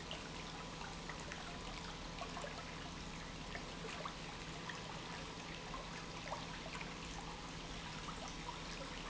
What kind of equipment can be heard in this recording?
pump